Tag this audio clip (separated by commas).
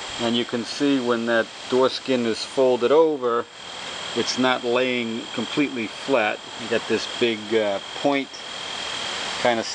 Speech